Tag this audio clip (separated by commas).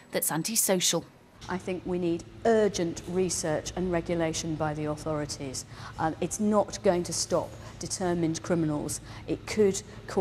Speech